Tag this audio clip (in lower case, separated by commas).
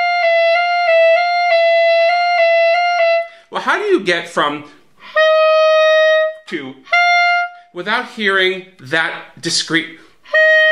playing clarinet